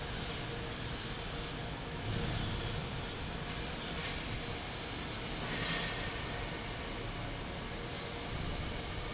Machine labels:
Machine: fan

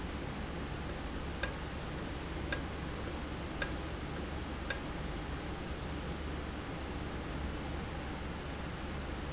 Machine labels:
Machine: valve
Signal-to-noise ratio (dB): -6 dB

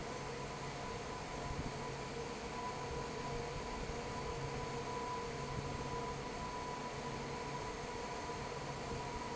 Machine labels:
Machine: fan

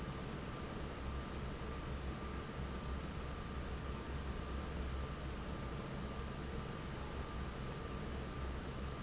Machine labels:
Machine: fan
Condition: normal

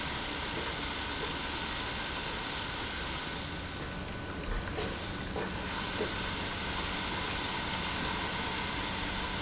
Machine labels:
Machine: pump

